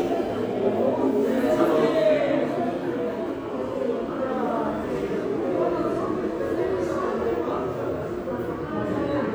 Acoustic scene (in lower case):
subway station